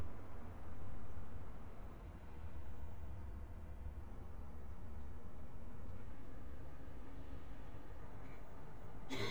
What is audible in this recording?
unidentified human voice